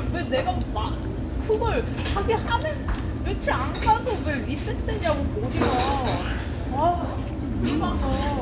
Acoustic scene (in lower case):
crowded indoor space